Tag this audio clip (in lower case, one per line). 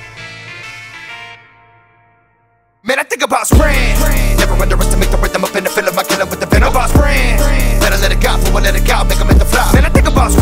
music